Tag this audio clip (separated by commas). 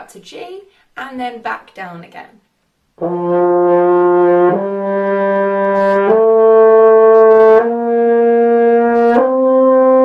playing french horn